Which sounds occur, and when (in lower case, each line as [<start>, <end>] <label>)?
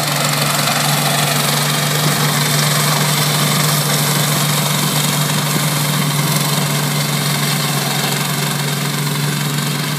[0.00, 9.95] lawn mower